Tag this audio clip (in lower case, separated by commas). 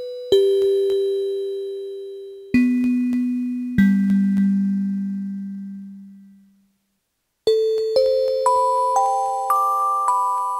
music